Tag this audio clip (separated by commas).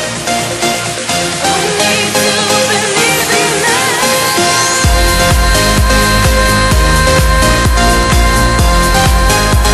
Rhythm and blues, Music